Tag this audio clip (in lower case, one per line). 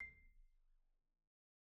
percussion
music
musical instrument
marimba
mallet percussion